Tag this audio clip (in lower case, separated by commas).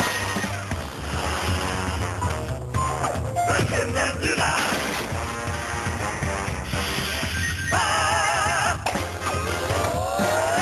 speech, music